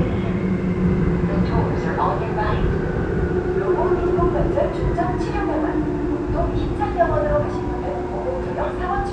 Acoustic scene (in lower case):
subway train